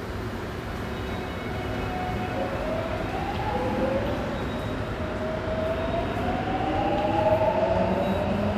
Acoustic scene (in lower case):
subway station